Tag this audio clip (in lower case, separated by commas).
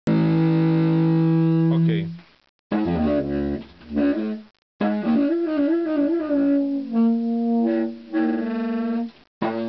jazz, saxophone, musical instrument, music, brass instrument, speech